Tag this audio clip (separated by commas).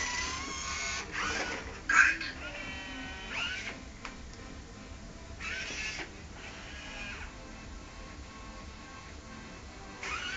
Music